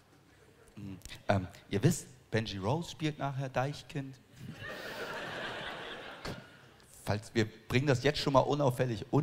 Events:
0.0s-9.2s: mechanisms
0.7s-0.9s: human voice
1.0s-1.0s: tick
1.1s-1.1s: human voice
1.2s-1.6s: man speaking
1.7s-2.0s: man speaking
2.3s-4.0s: man speaking
4.3s-6.8s: laughter
4.3s-6.8s: crowd
6.2s-6.4s: tap
6.8s-6.8s: tick
7.0s-7.5s: man speaking
7.6s-9.2s: man speaking

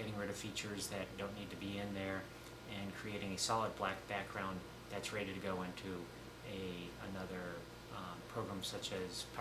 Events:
0.0s-2.2s: man speaking
0.0s-9.4s: mechanisms
2.4s-2.5s: tick
2.7s-4.6s: man speaking
4.3s-4.3s: tick
4.8s-6.0s: man speaking
5.7s-5.8s: tick
6.4s-7.6s: man speaking
7.2s-7.2s: tick
7.8s-9.4s: man speaking

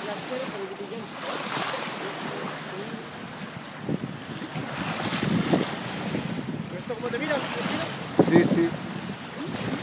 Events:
0.0s-0.9s: male speech
0.0s-9.8s: wind
0.0s-9.8s: water
2.7s-3.0s: male speech
3.8s-4.2s: wind noise (microphone)
4.5s-5.6s: wind noise (microphone)
5.9s-7.8s: wind noise (microphone)
6.8s-7.9s: male speech
8.1s-8.8s: wind noise (microphone)
8.2s-9.2s: male speech
9.5s-9.8s: wind noise (microphone)

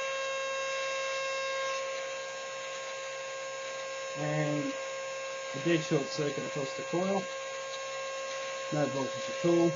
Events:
0.0s-9.7s: mechanisms
0.1s-0.3s: generic impact sounds
0.5s-1.2s: surface contact
1.6s-2.0s: generic impact sounds
2.6s-3.0s: generic impact sounds
3.6s-3.9s: generic impact sounds
4.1s-4.7s: man speaking
4.6s-4.9s: generic impact sounds
5.5s-7.2s: man speaking
6.2s-6.3s: generic impact sounds
7.0s-7.9s: generic impact sounds
8.2s-8.6s: generic impact sounds
8.7s-9.7s: man speaking
9.1s-9.3s: generic impact sounds

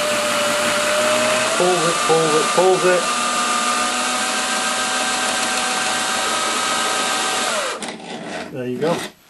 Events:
0.0s-7.8s: power tool
0.0s-9.2s: mechanisms
1.6s-1.9s: man speaking
2.1s-2.4s: man speaking
2.6s-3.0s: man speaking
7.8s-8.0s: generic impact sounds
8.0s-8.5s: surface contact
8.5s-9.1s: man speaking
8.7s-9.1s: surface contact
9.2s-9.2s: surface contact

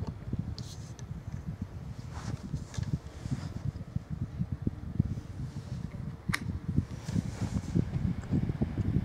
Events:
0.0s-0.2s: generic impact sounds
0.0s-9.0s: mechanical fan
0.0s-9.0s: wind noise (microphone)
0.6s-0.6s: tick
0.6s-0.9s: surface contact
0.9s-1.0s: tick
1.3s-1.5s: generic impact sounds
2.0s-2.4s: surface contact
2.6s-2.9s: generic impact sounds
3.1s-3.8s: surface contact
5.1s-6.0s: surface contact
6.3s-6.4s: tick
7.0s-7.8s: surface contact
7.0s-7.2s: generic impact sounds
8.2s-8.3s: generic impact sounds
8.8s-8.9s: generic impact sounds

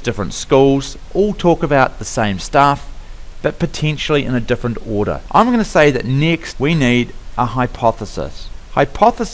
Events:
0.0s-0.9s: man speaking
0.0s-9.3s: mechanisms
1.1s-2.8s: man speaking
3.0s-3.2s: breathing
3.4s-5.2s: man speaking
5.3s-7.1s: man speaking
7.3s-8.5s: man speaking
8.7s-9.3s: man speaking

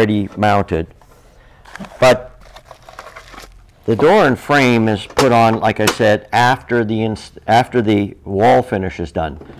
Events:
2.4s-3.5s: crinkling
9.4s-9.5s: breathing

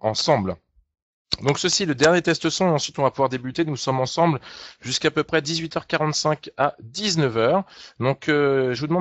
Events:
0.0s-0.6s: man speaking
1.3s-4.4s: man speaking
4.4s-4.8s: breathing
4.8s-6.8s: man speaking
7.0s-7.6s: man speaking
7.7s-8.0s: breathing
8.0s-9.0s: man speaking

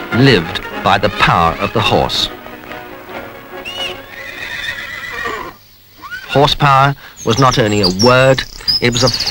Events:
0.0s-4.1s: music
3.1s-3.4s: clip-clop
4.0s-9.3s: background noise
6.0s-6.3s: whinny
8.7s-9.3s: chirp
8.8s-9.3s: male speech

